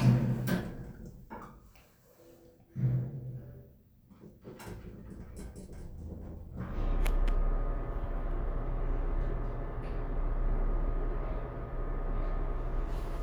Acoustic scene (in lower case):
elevator